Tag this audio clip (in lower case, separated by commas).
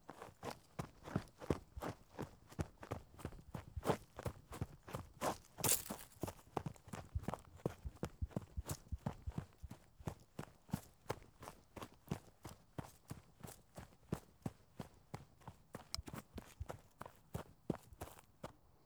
run